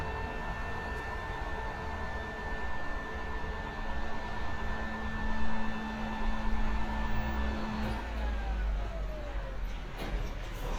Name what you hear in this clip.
large-sounding engine